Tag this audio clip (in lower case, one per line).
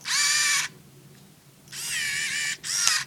camera
mechanisms